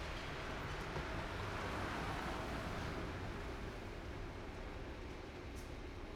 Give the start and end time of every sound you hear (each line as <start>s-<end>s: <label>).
0.0s-0.9s: bus wheels rolling
0.0s-6.2s: bus
0.0s-6.2s: bus engine idling
0.7s-6.2s: car
0.7s-6.2s: car wheels rolling
5.4s-5.8s: bus compressor